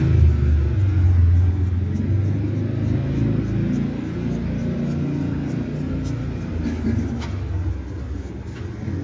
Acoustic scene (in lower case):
residential area